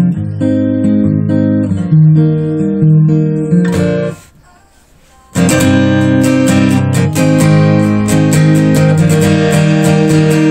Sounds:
Music, Guitar, Musical instrument, Strum, Bass guitar

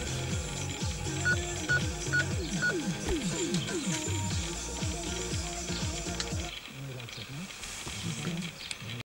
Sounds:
Music

